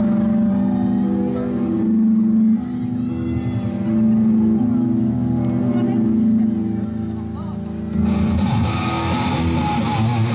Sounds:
musical instrument, music, guitar

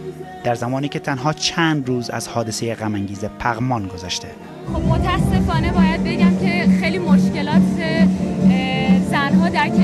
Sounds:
music, speech

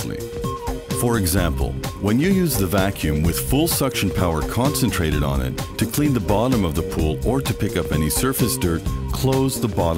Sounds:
music, speech

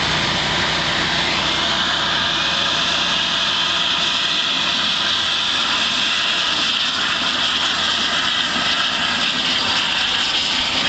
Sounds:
idling, engine, vehicle

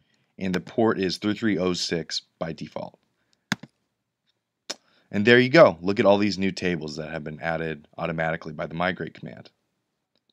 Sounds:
inside a small room, clicking, speech

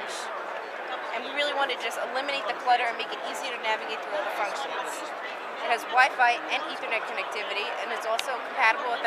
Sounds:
speech

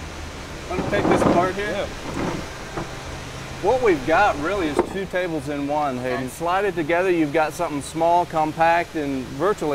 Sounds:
speech

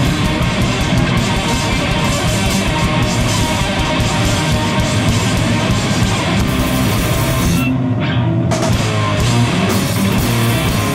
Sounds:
musical instrument, drum kit, rock music, drum, music

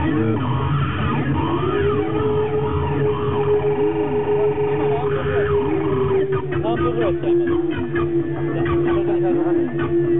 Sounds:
music, speech, outside, urban or man-made

